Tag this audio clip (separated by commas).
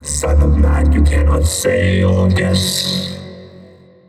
Human voice, Speech